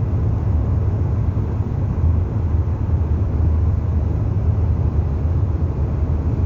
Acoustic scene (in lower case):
car